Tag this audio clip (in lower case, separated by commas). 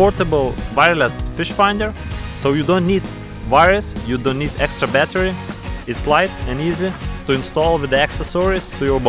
speech, music